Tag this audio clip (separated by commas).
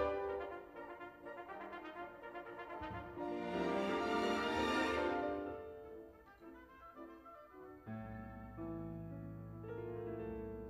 Piano, Classical music, Music, Orchestra, Musical instrument, Keyboard (musical)